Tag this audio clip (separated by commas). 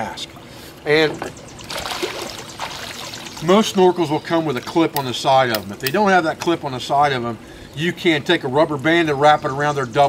Speech